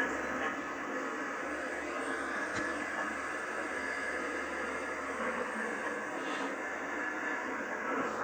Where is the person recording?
on a subway train